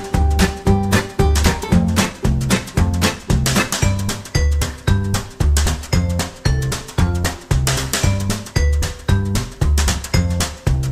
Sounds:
Music

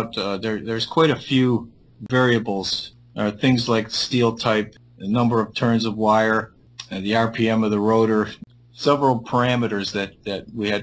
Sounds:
Speech

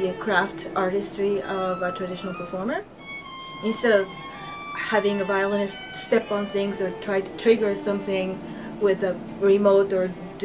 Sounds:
Musical instrument, fiddle, Speech, Music

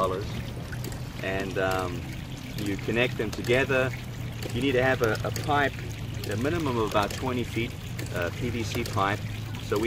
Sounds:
pumping water

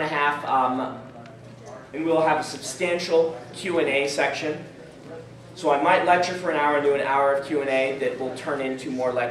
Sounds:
Speech

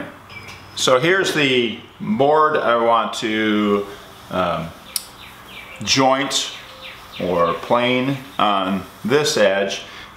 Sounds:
planing timber

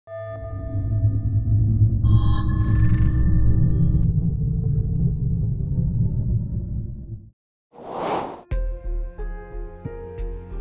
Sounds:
Music

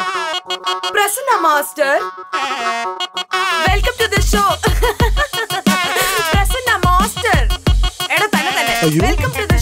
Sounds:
Singing, Music

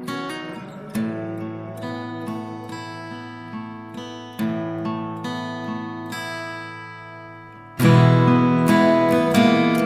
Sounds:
Music

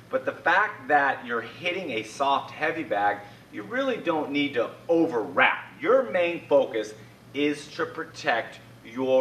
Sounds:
Speech

